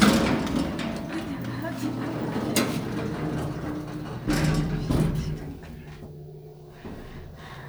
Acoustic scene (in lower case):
elevator